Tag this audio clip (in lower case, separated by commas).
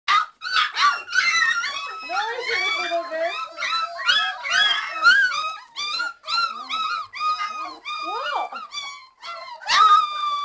dog, animal, speech, domestic animals